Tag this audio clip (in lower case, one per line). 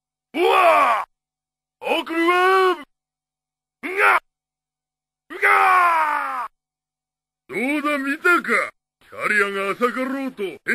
speech